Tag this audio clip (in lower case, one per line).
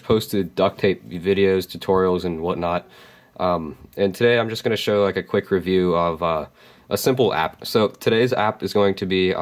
speech